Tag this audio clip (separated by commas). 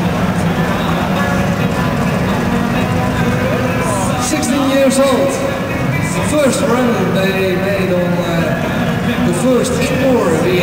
Music, Speech